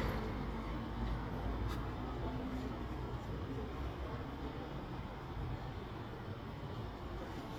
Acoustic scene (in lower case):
residential area